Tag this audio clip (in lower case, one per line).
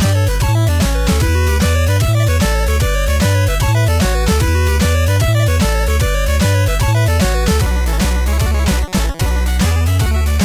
theme music
music